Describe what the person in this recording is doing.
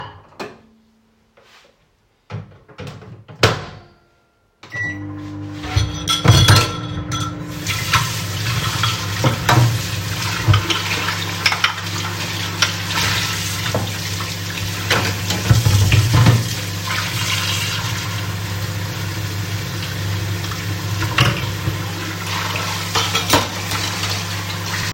I placed the bowl into the microwave, turned it on, and then started to wash the dishes in the sink